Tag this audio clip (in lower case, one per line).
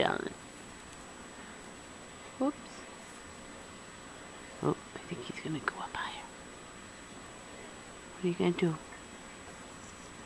speech